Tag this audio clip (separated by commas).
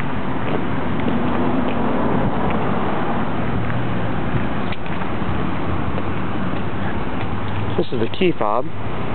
Speech